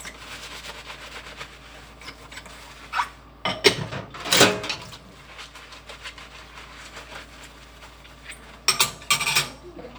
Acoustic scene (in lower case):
kitchen